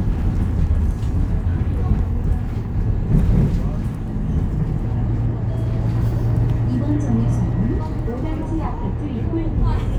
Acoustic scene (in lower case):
bus